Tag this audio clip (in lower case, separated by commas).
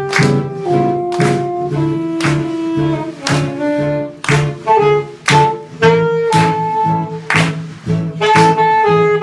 musical instrument, guitar, acoustic guitar, music